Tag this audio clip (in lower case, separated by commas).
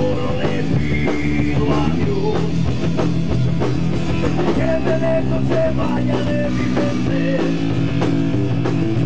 music